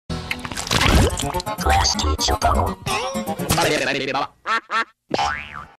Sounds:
speech
music

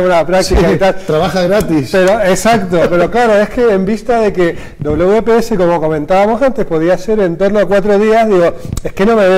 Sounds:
speech

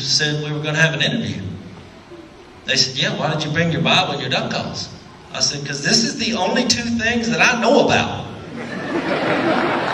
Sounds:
speech

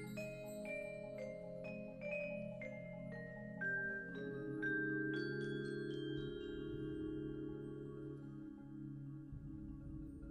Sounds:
xylophone
percussion
music
musical instrument

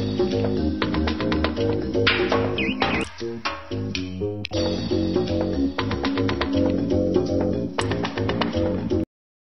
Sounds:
music

